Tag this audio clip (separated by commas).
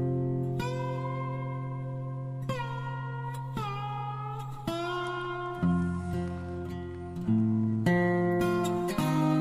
Music